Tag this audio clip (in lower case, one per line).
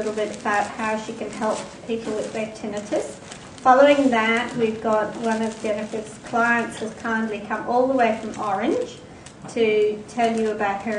crumpling
speech
inside a large room or hall